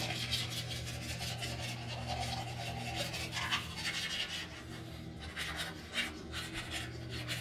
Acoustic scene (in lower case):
restroom